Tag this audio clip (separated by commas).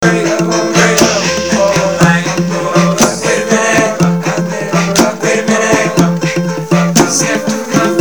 Acoustic guitar, Human voice, Musical instrument, Guitar, Music, Plucked string instrument